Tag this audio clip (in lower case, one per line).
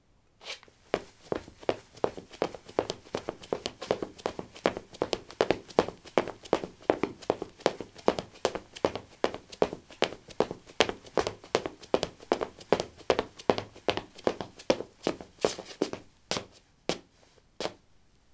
run